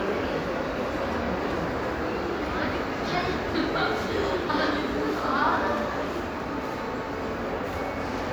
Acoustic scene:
crowded indoor space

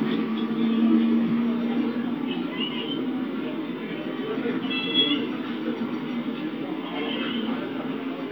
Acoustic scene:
park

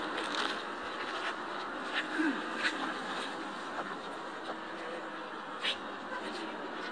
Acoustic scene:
park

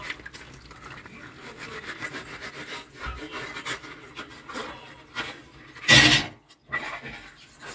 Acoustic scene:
kitchen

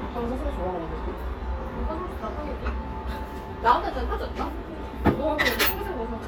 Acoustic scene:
restaurant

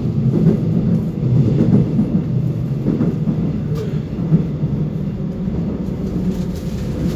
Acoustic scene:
subway train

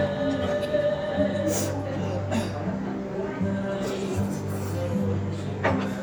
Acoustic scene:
restaurant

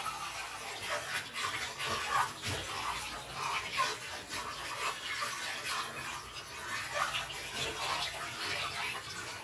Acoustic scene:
kitchen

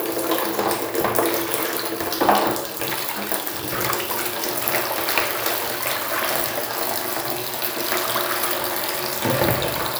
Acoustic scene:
restroom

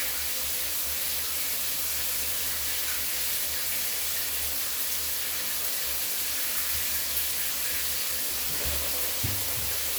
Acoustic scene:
restroom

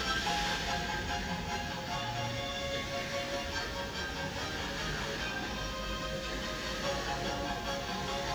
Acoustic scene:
park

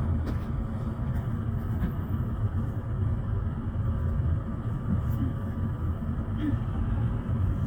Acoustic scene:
bus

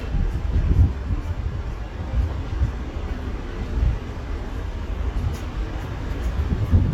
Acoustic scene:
street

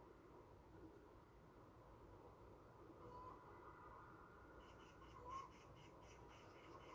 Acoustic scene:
park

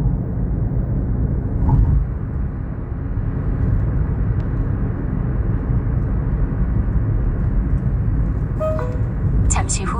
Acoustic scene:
car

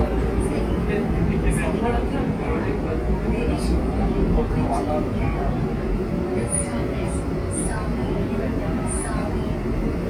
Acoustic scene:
subway train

